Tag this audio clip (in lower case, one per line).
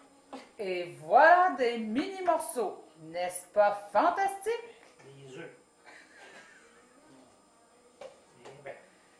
speech